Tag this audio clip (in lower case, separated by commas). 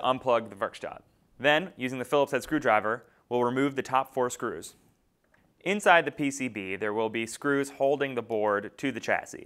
speech